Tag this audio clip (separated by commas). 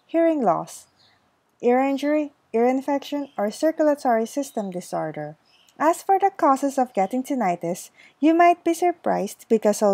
Speech